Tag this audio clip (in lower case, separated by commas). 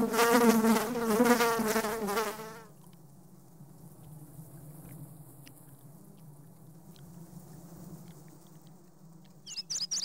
etc. buzzing